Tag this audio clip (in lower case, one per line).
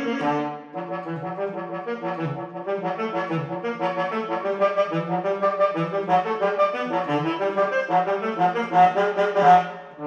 saxophone
jazz
brass instrument
music
musical instrument
woodwind instrument
playing saxophone